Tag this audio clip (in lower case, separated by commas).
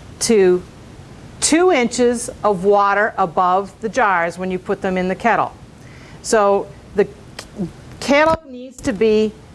speech